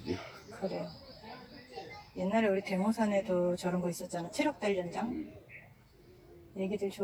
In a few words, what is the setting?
park